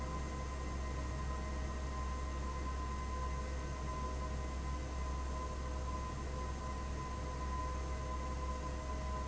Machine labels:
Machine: fan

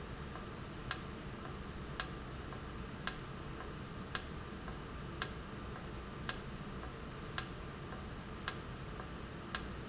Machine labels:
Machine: valve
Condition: normal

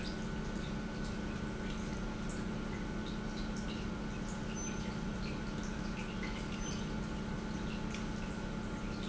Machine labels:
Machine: pump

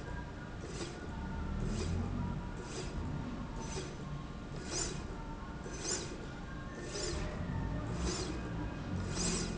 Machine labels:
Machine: slide rail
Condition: normal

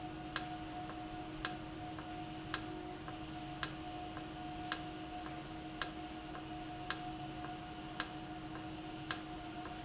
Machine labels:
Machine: valve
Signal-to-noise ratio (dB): 0 dB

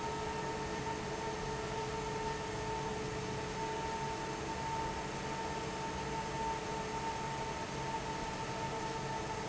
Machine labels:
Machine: fan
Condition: normal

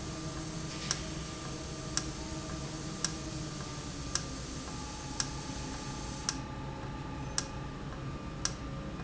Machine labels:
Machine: valve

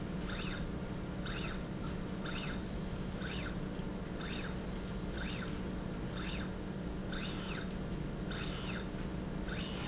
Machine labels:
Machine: slide rail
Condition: normal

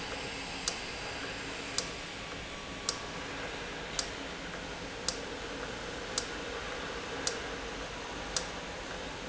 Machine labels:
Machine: valve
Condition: normal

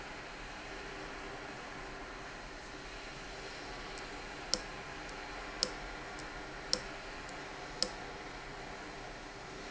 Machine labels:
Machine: valve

